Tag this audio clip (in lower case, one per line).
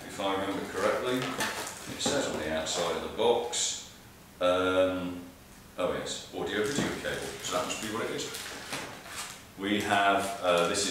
speech